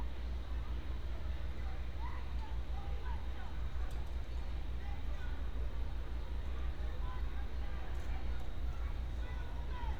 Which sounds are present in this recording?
person or small group shouting